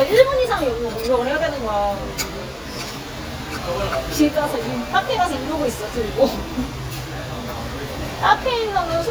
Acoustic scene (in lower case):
restaurant